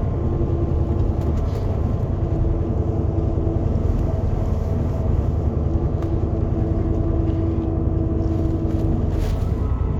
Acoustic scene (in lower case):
car